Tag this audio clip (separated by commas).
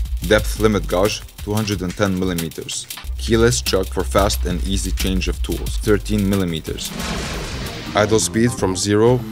Speech, Music, Tools